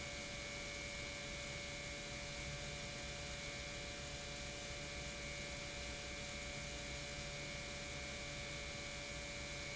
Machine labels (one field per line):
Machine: pump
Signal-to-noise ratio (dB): 6 dB